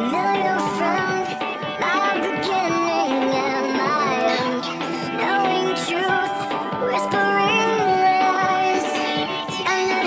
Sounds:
music

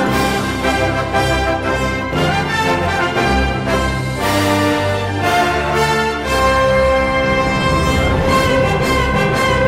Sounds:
music

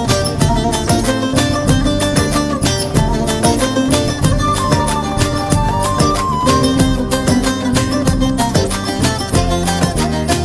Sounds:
music, folk music

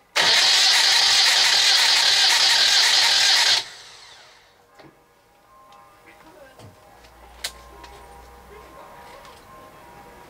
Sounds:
medium engine (mid frequency), music, engine, vehicle

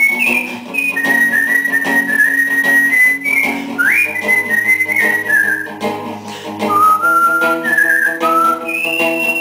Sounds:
whistling, music, people whistling, electronic organ

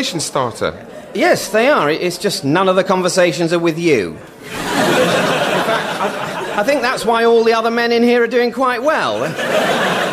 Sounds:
speech

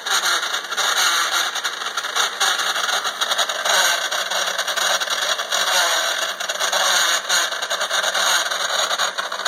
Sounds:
engine

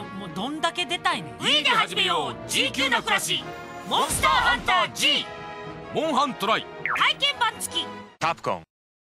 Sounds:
music, speech

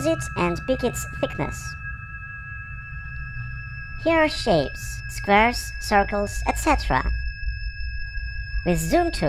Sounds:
music, speech

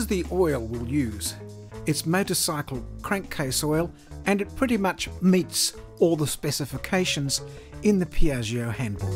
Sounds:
speech, music

